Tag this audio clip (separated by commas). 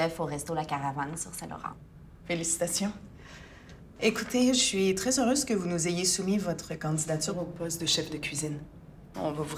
Speech